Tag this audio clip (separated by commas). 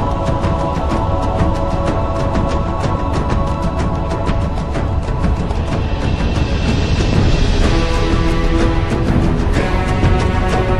Music, Electronic music, Techno